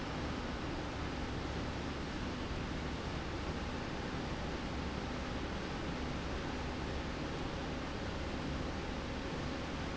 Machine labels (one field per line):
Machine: slide rail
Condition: normal